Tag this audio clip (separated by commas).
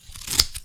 Scissors, home sounds